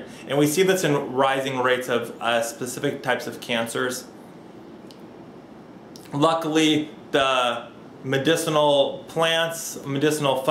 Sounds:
speech

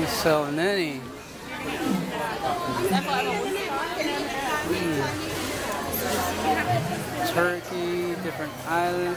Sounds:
inside a large room or hall, speech

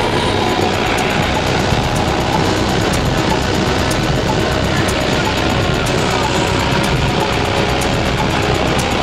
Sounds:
music

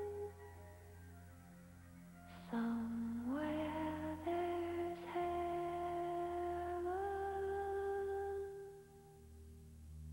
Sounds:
music

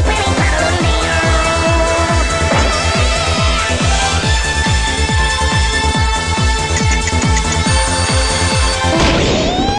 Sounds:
music

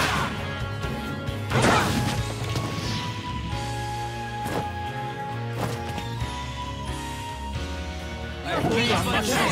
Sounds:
music, speech

